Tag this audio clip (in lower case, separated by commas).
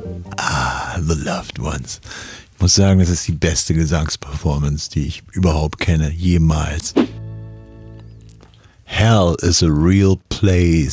speech, music